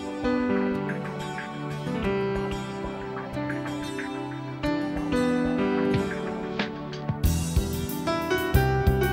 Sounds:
Music

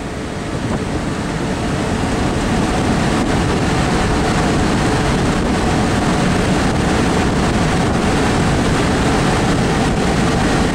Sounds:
Vehicle

